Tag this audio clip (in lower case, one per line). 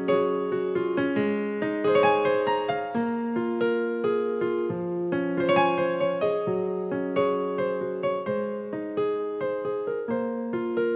piano
keyboard (musical)